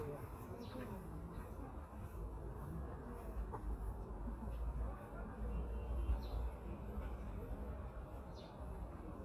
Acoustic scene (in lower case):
residential area